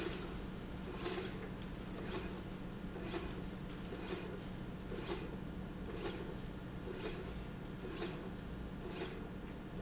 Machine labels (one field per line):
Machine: slide rail